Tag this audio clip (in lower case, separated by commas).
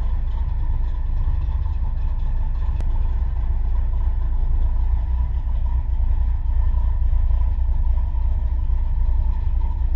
outside, rural or natural, vehicle, car